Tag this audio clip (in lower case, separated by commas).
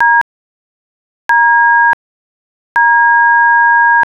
alarm, telephone